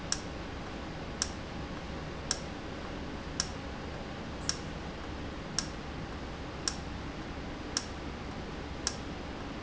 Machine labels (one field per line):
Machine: valve